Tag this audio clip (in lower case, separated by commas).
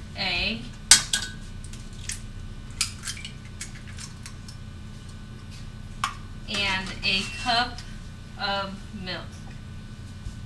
speech